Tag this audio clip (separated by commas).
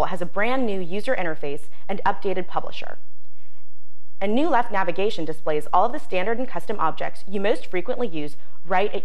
Speech